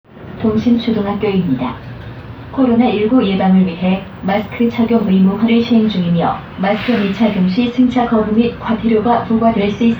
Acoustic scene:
bus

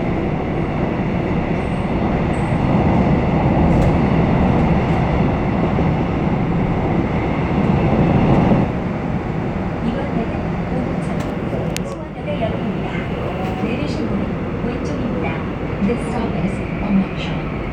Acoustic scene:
subway train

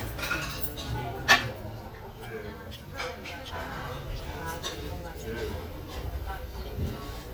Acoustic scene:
restaurant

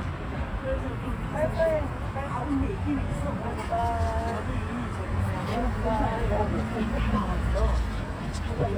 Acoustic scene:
residential area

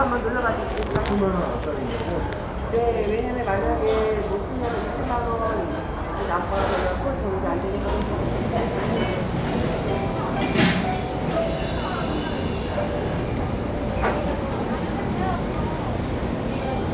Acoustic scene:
restaurant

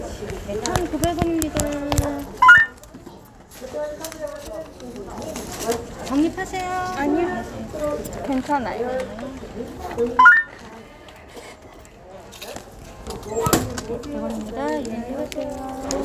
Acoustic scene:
crowded indoor space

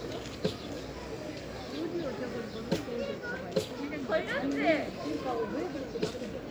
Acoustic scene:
park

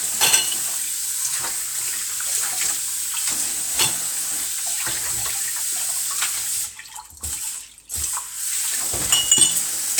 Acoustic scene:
kitchen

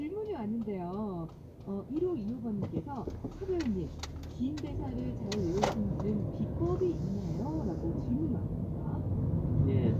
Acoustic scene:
car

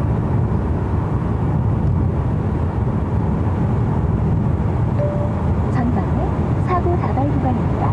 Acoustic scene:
car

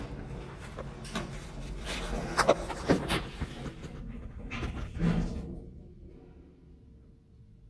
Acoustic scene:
elevator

